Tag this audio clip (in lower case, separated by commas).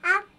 speech, human voice, child speech